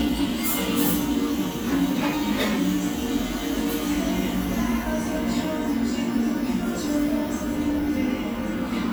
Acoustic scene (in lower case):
cafe